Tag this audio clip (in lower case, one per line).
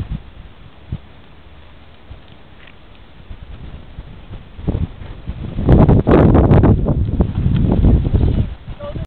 horse clip-clop
speech
clip-clop
animal